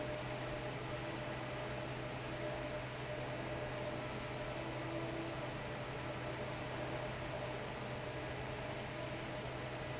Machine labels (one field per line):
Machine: fan